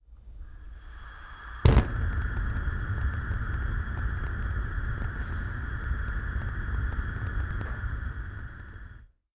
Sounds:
fire

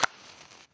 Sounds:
fire

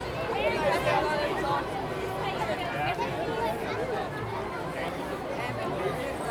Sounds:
crowd
human group actions

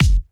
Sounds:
bass drum
music
musical instrument
drum
percussion

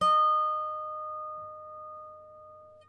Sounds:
music
harp
musical instrument

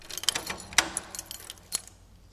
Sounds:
rattle
home sounds
keys jangling

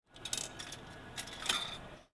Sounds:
domestic sounds
coin (dropping)

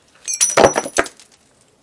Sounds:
shatter
glass

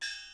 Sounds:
music
percussion
musical instrument
gong

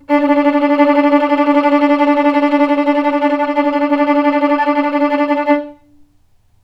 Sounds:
musical instrument
bowed string instrument
music

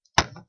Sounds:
tap

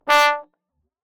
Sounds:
brass instrument
musical instrument
music

